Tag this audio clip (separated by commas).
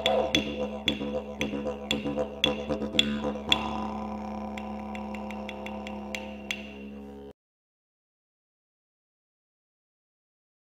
playing didgeridoo